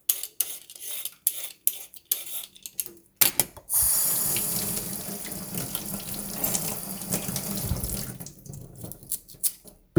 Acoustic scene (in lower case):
kitchen